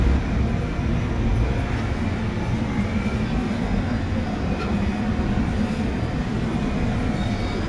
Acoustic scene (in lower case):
subway train